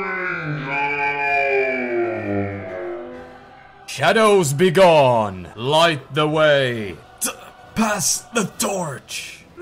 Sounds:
speech, music

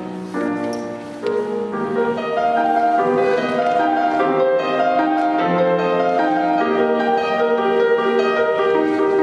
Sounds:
music

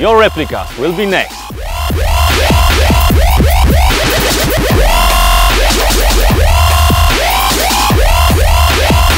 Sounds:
speech, music

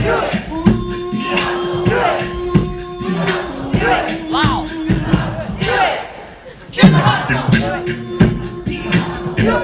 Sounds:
music

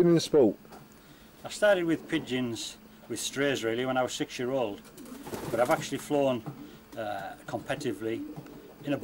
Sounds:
speech

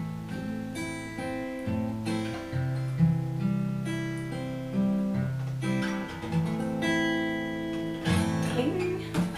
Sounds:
strum, music, speech, acoustic guitar, guitar

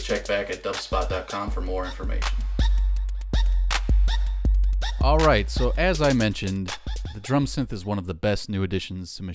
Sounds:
speech, music

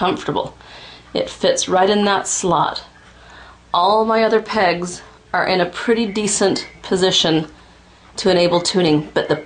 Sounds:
speech

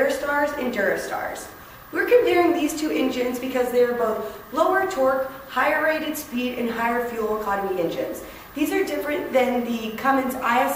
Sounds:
woman speaking, speech

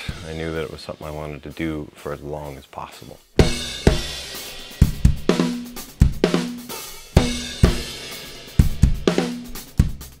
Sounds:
drum kit, speech, musical instrument, music, cymbal, hi-hat, percussion, snare drum, bass drum, drum

